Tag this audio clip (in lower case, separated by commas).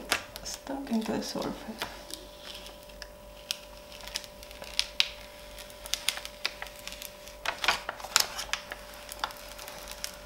inside a small room, speech